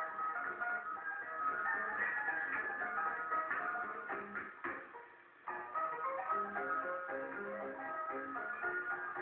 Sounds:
Funny music, Music

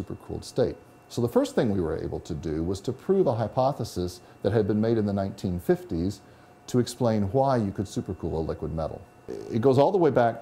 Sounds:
Speech

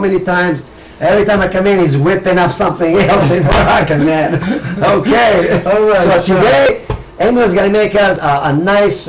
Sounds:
Speech

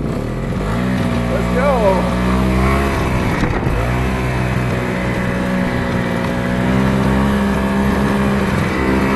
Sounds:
driving snowmobile

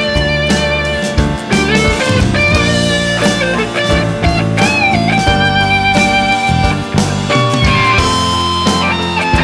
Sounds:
Psychedelic rock

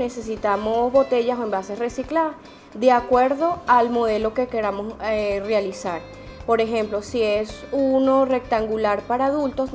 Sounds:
Speech, Music

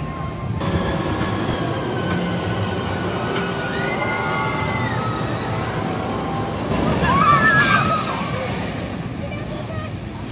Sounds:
roller coaster running

